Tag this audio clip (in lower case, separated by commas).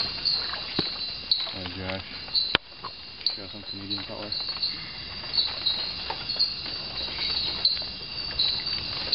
speech, insect, outside, rural or natural, bird